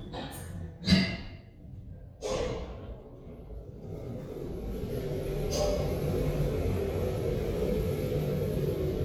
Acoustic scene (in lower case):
elevator